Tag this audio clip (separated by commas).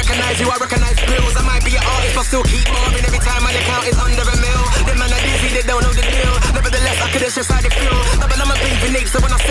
Music